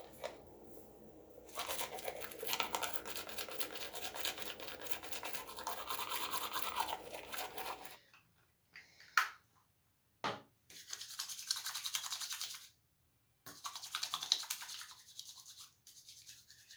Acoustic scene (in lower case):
restroom